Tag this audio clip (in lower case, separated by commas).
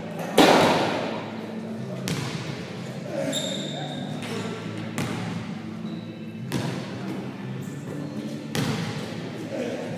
dribble, speech